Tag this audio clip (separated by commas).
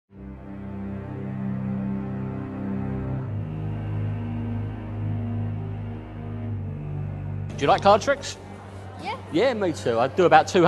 Music, Scary music, Speech